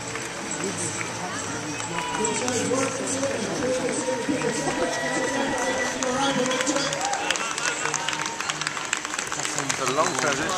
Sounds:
Speech, Stream

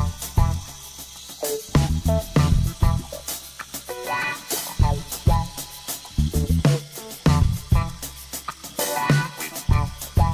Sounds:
Music

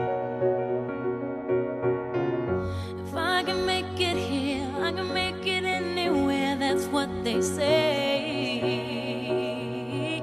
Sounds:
Piano

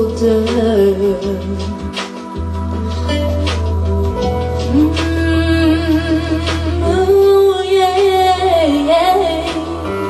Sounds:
Female singing, Music

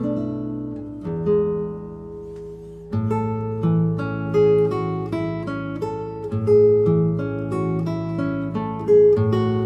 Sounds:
Music, Strum, Plucked string instrument, Musical instrument, Acoustic guitar, Guitar, Electric guitar

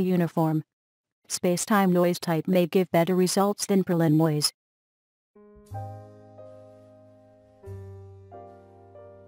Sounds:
Speech

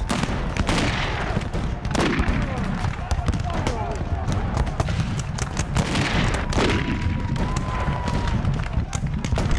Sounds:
firing muskets

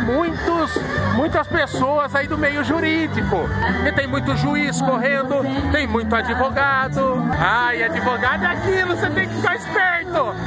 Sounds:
Speech, Music

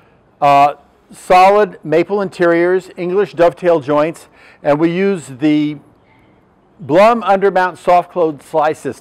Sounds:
Speech

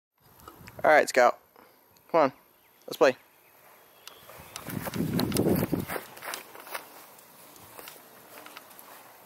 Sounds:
Dog, Speech, Animal, pets

